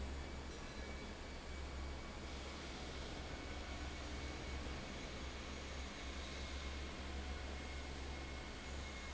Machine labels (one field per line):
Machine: fan